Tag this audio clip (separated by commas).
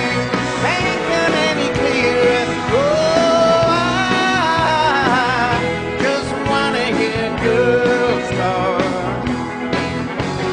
Male singing, Music